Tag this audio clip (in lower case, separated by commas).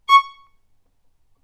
music, musical instrument, bowed string instrument